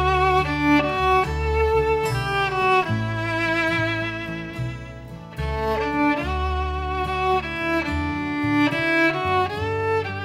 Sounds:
Violin, Musical instrument, Music

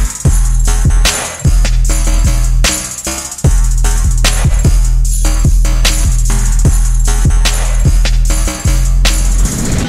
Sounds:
Music

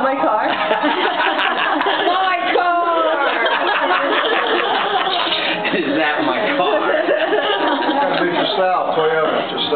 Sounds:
Speech

